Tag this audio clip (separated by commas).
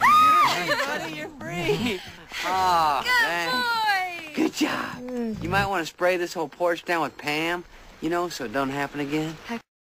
Speech, outside, urban or man-made